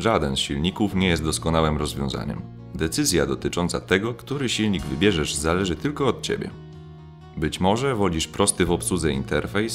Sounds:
Music, Speech

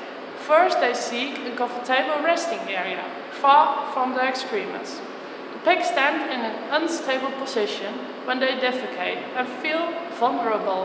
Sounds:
Speech

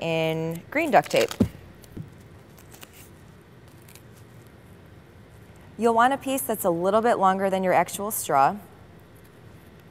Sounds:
Speech

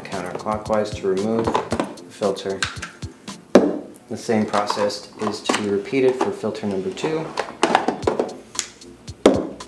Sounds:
Music, Speech

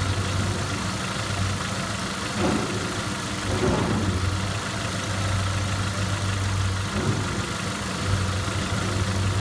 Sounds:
Engine, Medium engine (mid frequency), Idling

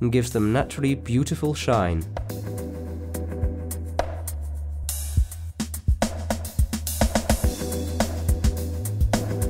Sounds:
Music, Speech

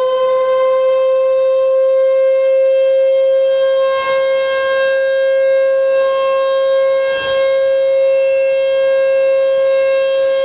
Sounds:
Siren, Civil defense siren

